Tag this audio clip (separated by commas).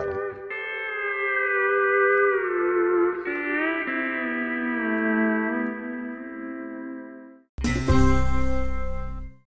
Steel guitar, Music